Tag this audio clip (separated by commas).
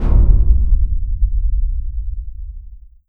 Boom, Explosion